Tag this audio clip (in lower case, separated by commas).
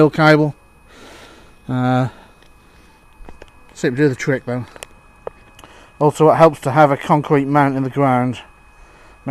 speech